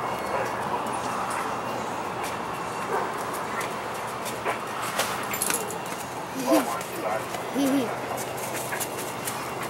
A dog barking, and a toddler laughing.